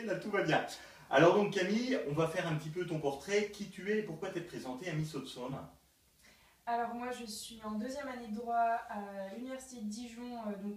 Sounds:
Speech

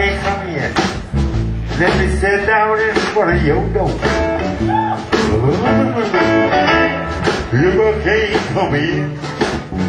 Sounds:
Music, Speech

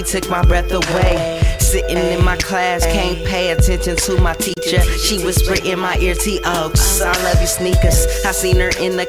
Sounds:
Pop music, Music

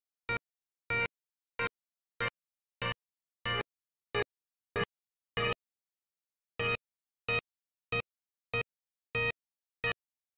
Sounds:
playing bagpipes

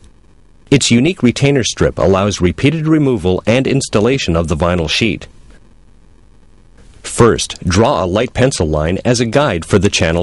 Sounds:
Speech

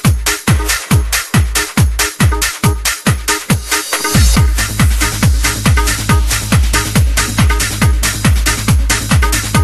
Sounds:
Techno, Music

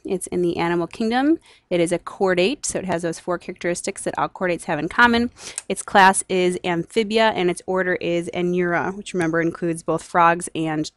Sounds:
Speech

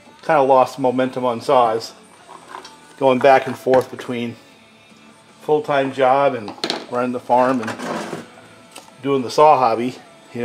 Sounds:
Music, Speech

